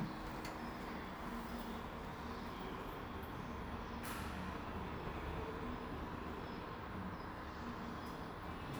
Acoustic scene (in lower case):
elevator